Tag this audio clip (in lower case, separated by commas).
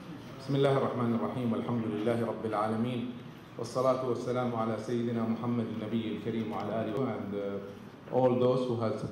male speech, speech, monologue